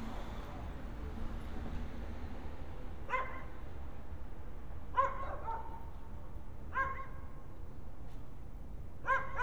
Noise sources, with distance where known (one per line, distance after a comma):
dog barking or whining